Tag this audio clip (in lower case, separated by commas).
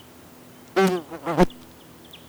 insect, animal, wild animals